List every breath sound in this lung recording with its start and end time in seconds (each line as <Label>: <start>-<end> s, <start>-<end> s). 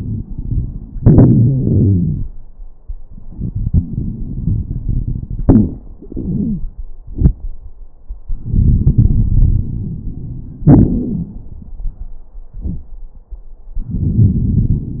Inhalation: 0.00-0.94 s, 3.10-5.42 s, 8.29-10.68 s, 13.78-15.00 s
Exhalation: 0.99-2.38 s, 5.45-6.85 s, 10.69-12.15 s
Crackles: 0.00-0.94 s, 0.99-2.38 s, 3.10-5.42 s, 5.45-6.85 s, 8.29-10.68 s, 10.69-12.15 s, 13.78-15.00 s